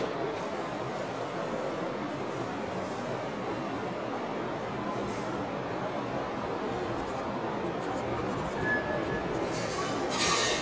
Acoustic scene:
subway station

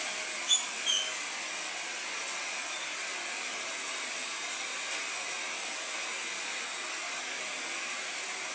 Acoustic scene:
subway station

